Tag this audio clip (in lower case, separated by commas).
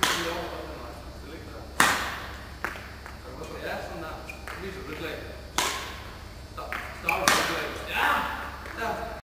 speech, crash